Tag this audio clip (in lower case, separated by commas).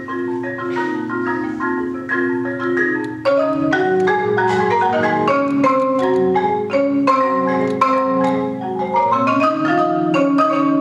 musical instrument, xylophone, music, percussion